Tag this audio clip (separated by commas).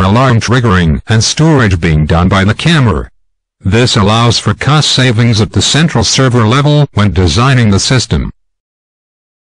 Speech